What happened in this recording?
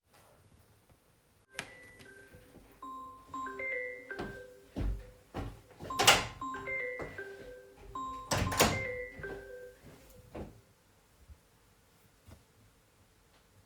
phone started ringing, moved towards the bedroom which was were my phone and recording device were. opned and closed the door and answered the phone